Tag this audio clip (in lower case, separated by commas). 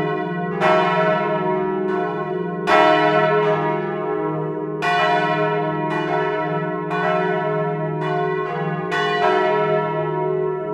church bell ringing